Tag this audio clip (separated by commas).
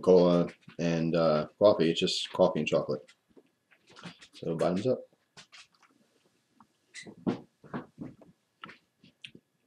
mastication